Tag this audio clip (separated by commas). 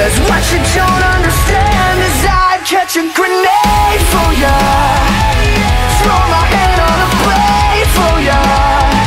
Music